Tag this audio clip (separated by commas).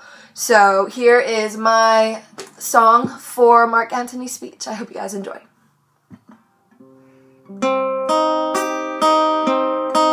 Speech, woman speaking, Music